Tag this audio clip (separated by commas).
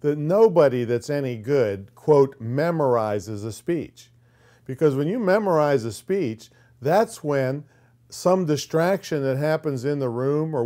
man speaking, Speech